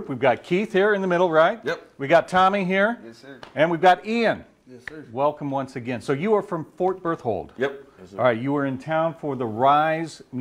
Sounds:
Speech

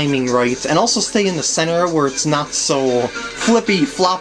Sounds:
Music, Speech

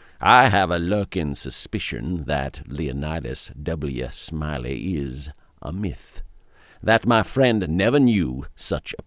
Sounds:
Speech

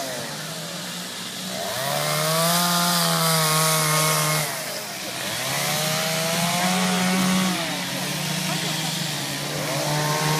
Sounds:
chainsawing trees, Chainsaw, Speech

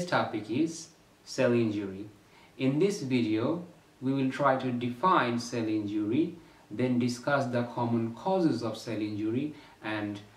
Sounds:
Speech

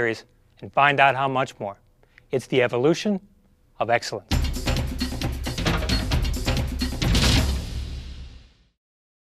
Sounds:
Speech, Music

